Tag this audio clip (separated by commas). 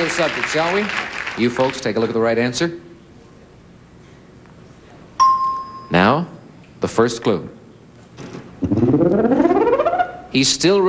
Speech, Music